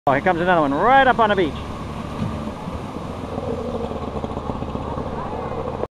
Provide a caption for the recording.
A man speaks as an an engine decelerates